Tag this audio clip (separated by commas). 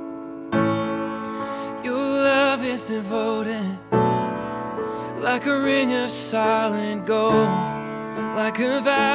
Sad music, Music